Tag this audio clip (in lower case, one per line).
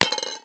domestic sounds
coin (dropping)